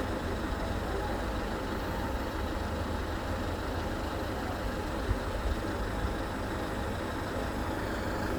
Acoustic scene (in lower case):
street